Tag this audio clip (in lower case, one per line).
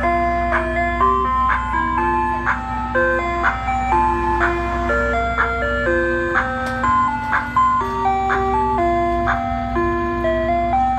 ice cream van